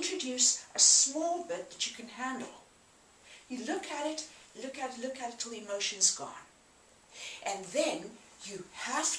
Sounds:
speech, inside a large room or hall

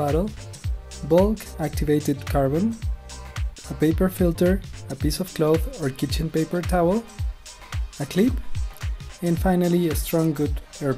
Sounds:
speech, music

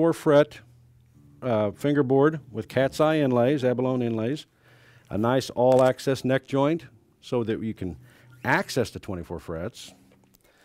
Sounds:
speech

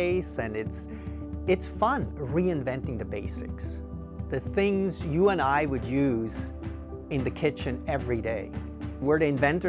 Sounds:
music, speech

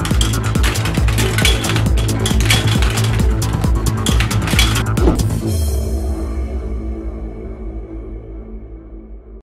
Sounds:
mechanisms

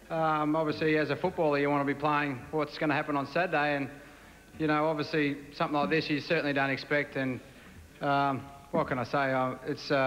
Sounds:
male speech, monologue, speech

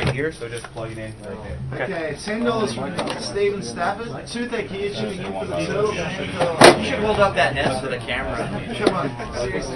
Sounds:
speech

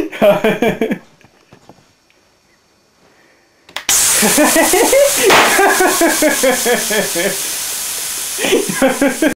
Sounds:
bang

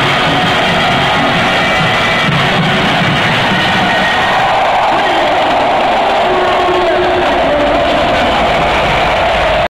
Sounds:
speech, music

